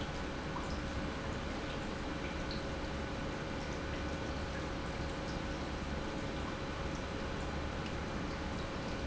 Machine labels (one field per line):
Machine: pump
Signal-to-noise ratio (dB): -6 dB